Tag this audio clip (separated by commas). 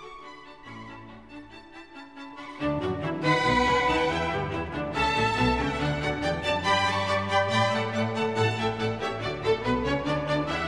Music